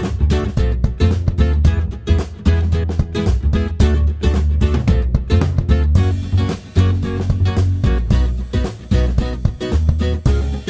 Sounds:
music

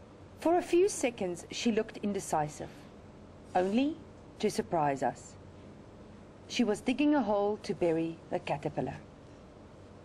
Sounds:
speech

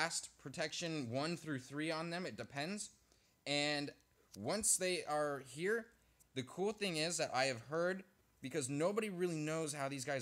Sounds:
speech

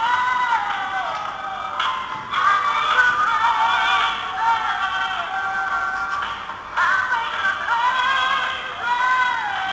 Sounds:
music

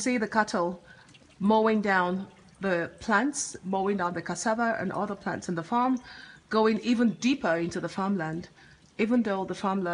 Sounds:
speech

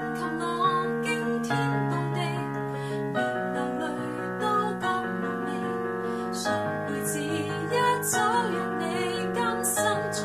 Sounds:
musical instrument
music
piano

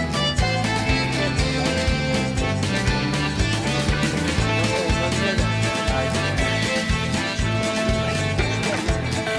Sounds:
speech
music

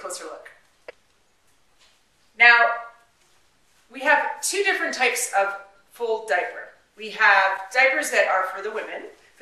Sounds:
speech

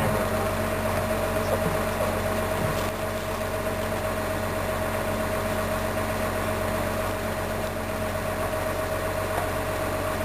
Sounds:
vehicle
outside, urban or man-made

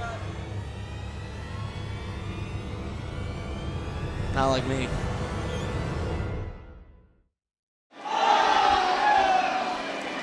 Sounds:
speech

